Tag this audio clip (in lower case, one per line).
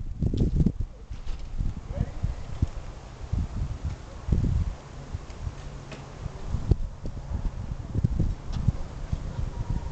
vehicle